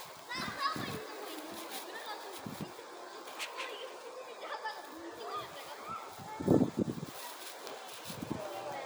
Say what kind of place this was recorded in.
residential area